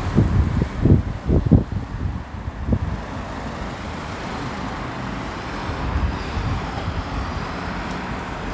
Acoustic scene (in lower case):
street